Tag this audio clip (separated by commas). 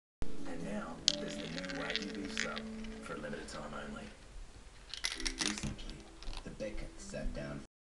Speech, Music